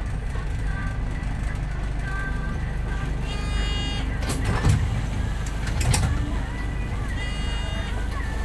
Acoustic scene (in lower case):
bus